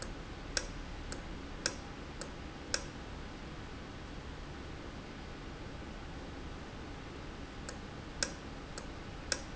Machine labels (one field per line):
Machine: valve